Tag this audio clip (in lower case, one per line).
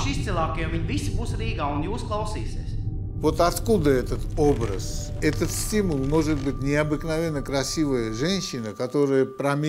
inside a large room or hall
speech